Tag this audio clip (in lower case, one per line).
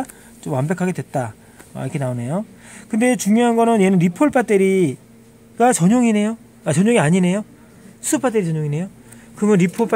speech